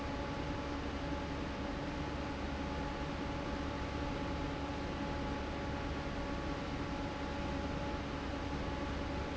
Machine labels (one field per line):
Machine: fan